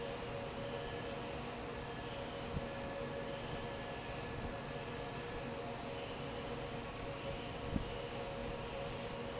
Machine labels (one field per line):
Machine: fan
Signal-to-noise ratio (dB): 0 dB